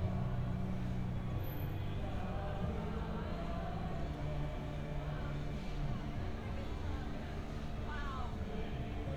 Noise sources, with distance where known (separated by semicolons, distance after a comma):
music from a fixed source; person or small group talking